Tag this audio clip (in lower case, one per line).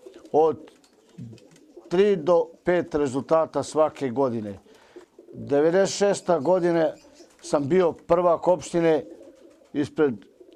speech